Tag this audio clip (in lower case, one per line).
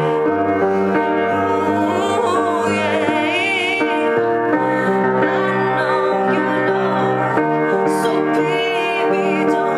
female singing
music